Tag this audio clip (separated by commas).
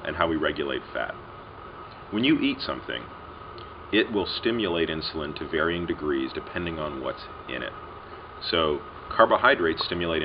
Speech